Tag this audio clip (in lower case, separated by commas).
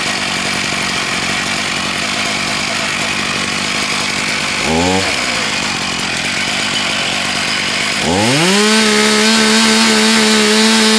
tools, power tool